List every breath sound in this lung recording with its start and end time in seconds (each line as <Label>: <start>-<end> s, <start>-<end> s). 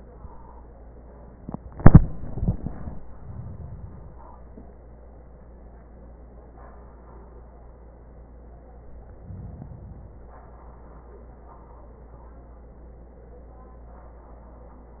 Inhalation: 3.01-4.29 s, 9.08-10.36 s